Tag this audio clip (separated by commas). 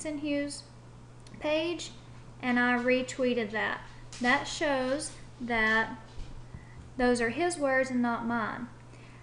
Speech